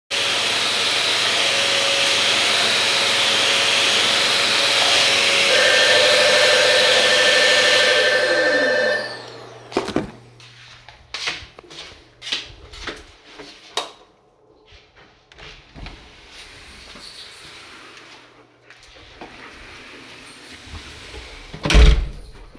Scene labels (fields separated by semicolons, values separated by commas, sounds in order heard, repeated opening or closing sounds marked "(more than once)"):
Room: kitchen, hallway; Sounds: vacuum cleaner, bell ringing, footsteps, light switch, door